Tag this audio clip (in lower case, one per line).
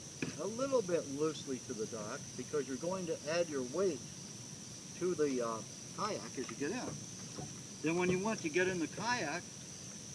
speech